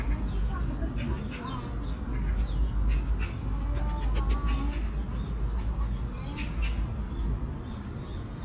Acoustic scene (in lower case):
park